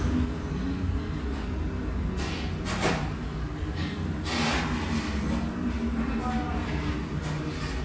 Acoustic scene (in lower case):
restaurant